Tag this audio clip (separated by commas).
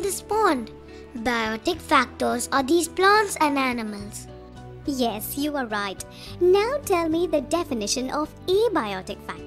Music, Child speech, Music for children, Speech